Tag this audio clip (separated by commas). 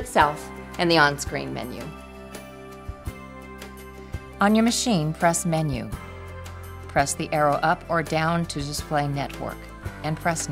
Speech, Music